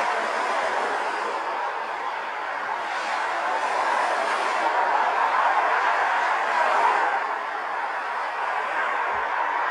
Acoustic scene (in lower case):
street